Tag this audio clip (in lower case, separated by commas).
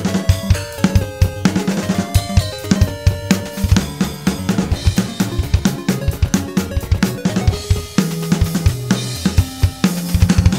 music